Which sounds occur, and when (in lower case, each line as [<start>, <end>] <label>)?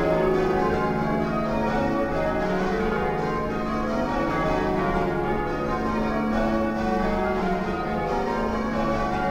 [0.00, 9.30] change ringing (campanology)